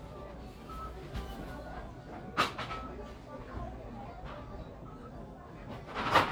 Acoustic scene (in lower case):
crowded indoor space